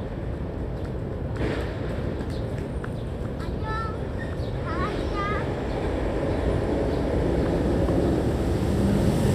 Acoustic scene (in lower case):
residential area